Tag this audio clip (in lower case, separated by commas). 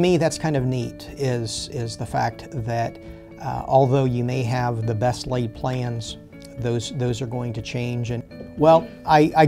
music, speech